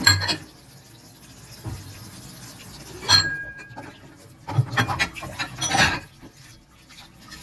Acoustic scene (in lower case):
kitchen